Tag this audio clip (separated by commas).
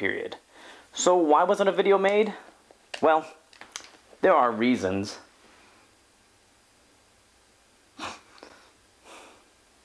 inside a small room, Speech